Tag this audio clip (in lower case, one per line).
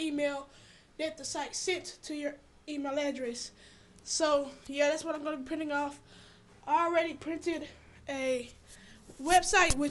speech